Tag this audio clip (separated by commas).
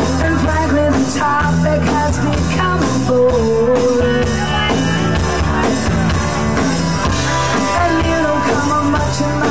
Music